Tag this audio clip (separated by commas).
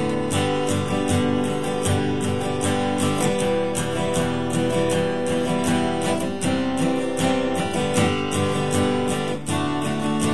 Music